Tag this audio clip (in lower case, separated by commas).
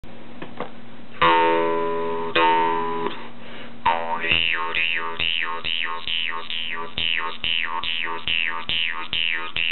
musical instrument, music